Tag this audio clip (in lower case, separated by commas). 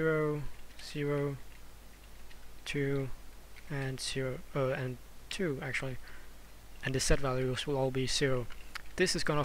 speech